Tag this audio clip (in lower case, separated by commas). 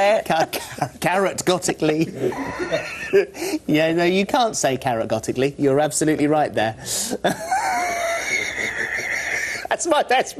speech